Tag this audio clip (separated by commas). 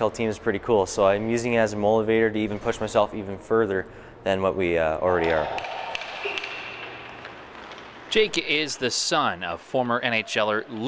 Speech